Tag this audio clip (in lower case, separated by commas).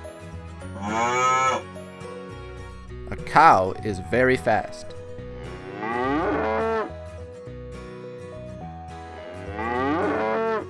cattle mooing